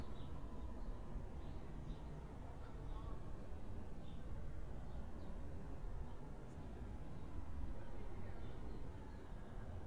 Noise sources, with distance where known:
person or small group talking, far

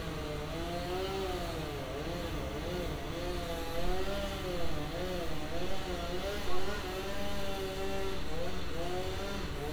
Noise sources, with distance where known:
chainsaw, near

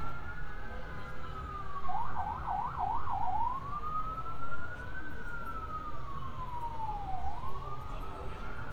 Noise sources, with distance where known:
siren, far

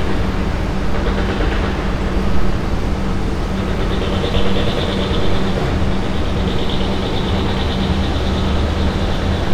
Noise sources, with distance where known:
unidentified impact machinery, far

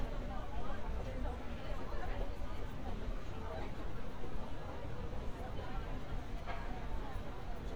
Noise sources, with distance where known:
person or small group talking

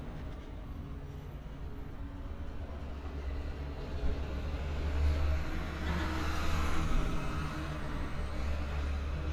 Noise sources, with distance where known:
engine of unclear size

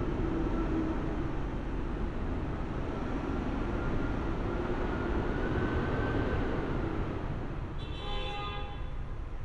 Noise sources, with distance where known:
large-sounding engine, far; car horn, far

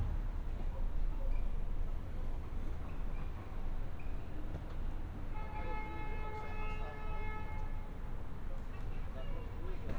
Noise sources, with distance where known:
car horn, far; person or small group talking

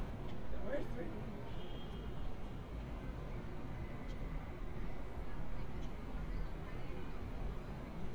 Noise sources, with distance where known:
unidentified human voice

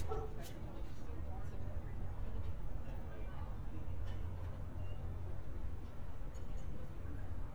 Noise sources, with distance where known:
dog barking or whining, far

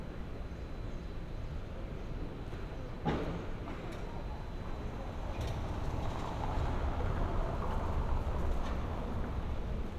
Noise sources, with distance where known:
unidentified impact machinery

